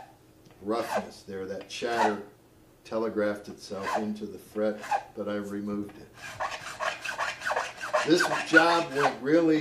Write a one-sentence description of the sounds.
A man talks and files an object